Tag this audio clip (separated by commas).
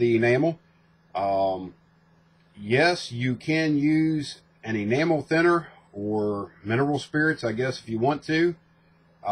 Speech